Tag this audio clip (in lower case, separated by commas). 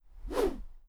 swoosh